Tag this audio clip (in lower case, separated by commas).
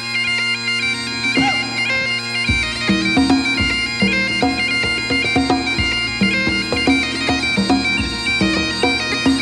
woodwind instrument, bagpipes